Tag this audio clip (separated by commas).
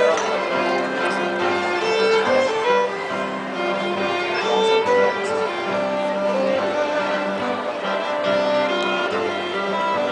Speech, Music